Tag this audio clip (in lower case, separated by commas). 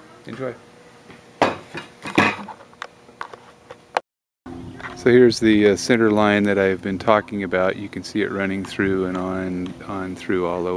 speech, inside a small room